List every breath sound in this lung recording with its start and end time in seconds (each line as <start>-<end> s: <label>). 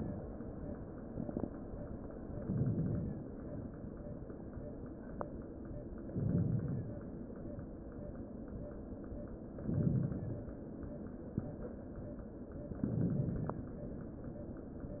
2.42-3.34 s: inhalation
6.10-7.02 s: inhalation
9.54-10.47 s: inhalation
12.79-13.71 s: inhalation